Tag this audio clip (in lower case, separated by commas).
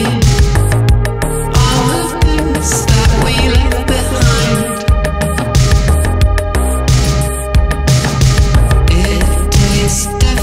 electronica